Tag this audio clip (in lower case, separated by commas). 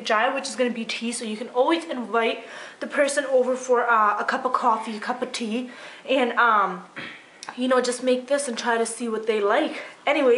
speech